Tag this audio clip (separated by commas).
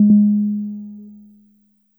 Musical instrument, Music, Keyboard (musical), Piano